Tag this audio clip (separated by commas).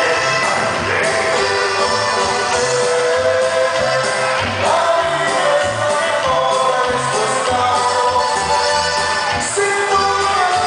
Music, Pop music